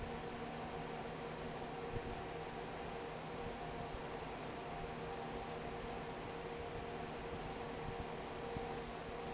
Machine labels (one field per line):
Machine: fan